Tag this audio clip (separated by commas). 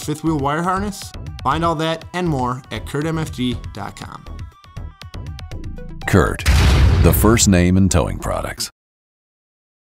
Music, Speech, Speech synthesizer